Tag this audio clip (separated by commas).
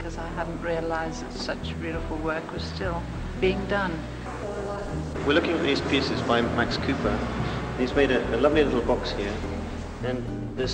Speech, Music